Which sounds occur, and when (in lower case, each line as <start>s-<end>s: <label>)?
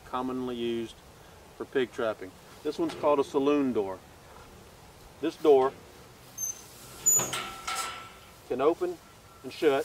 0.0s-9.8s: wind
0.1s-1.0s: male speech
1.1s-1.3s: surface contact
1.6s-2.3s: male speech
2.4s-2.6s: surface contact
2.6s-4.0s: male speech
2.8s-2.9s: generic impact sounds
5.2s-5.7s: male speech
6.2s-8.3s: surface contact
6.3s-6.6s: squeal
7.0s-7.3s: squeal
7.1s-7.4s: generic impact sounds
7.6s-7.9s: generic impact sounds
8.5s-9.0s: male speech
8.6s-8.9s: surface contact
9.4s-9.8s: male speech
9.5s-9.8s: surface contact